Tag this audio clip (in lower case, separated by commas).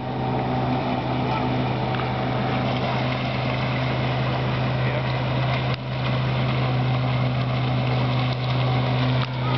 speech